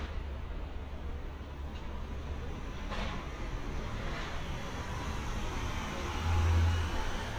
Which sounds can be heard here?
engine of unclear size